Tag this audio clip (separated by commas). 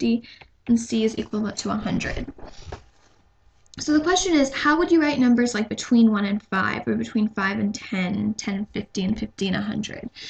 Speech